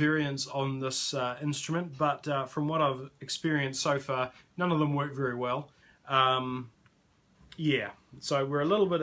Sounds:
speech

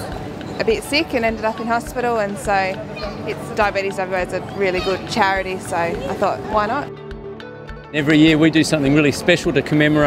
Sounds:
speech, music

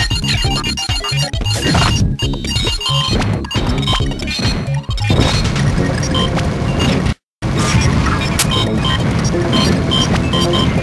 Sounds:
music

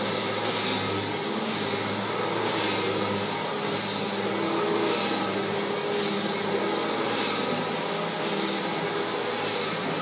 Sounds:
vacuum cleaner cleaning floors

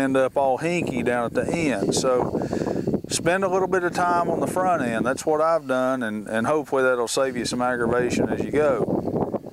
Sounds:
outside, rural or natural, speech

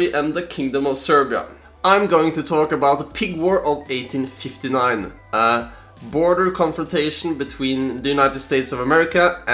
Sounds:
music, speech

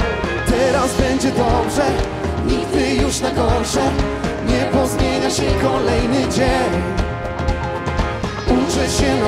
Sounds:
music

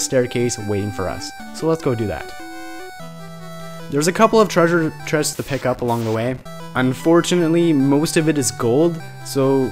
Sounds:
speech, music

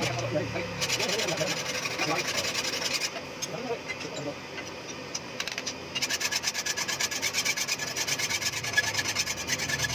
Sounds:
sharpen knife

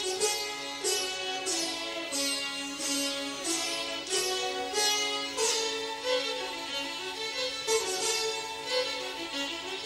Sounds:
music

